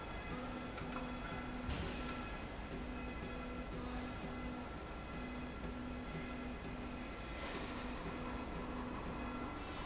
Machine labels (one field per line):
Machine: slide rail